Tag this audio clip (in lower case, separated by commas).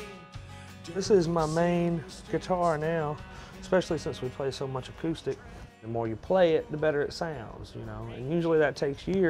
music, musical instrument, guitar, speech, plucked string instrument